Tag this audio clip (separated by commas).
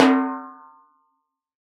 Percussion, Drum, Snare drum, Musical instrument, Music